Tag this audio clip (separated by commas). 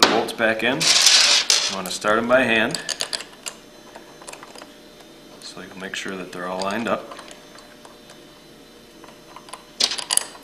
Speech